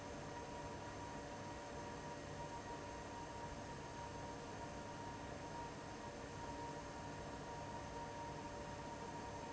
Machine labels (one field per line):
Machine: fan